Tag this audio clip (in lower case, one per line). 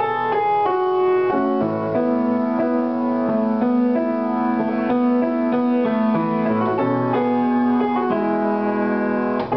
music